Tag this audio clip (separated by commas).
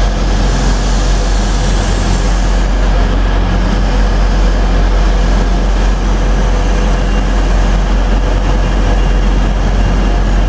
Train, train wagon, Rail transport